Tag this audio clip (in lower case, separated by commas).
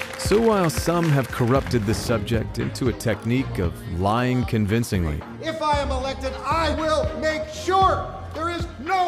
speech, music